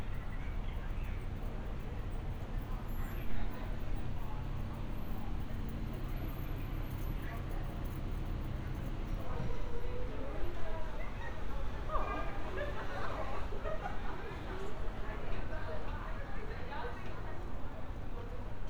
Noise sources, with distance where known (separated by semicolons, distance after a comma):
person or small group talking